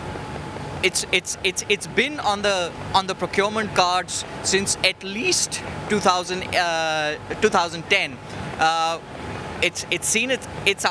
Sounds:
speech
inside a large room or hall

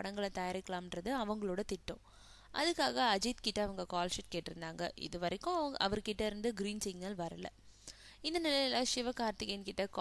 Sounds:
speech

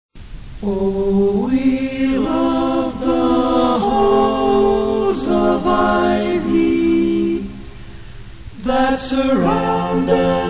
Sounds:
chant

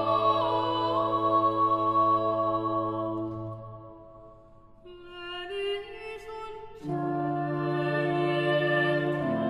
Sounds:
music
tender music

